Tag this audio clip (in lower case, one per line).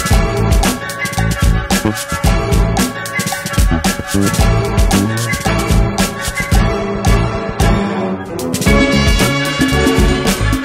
music